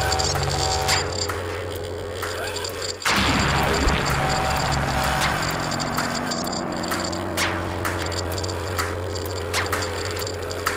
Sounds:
Vehicle, Music

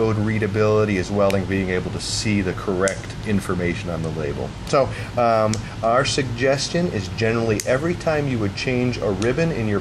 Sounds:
Speech

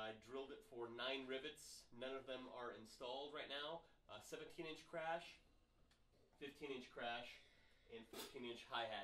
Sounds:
Speech

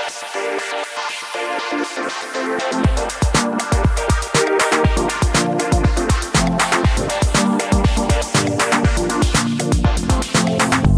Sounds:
Music

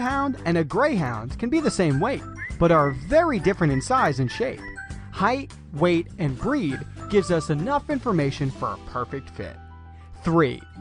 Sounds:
Music, Speech

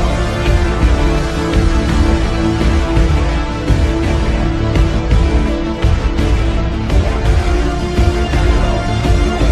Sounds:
Music

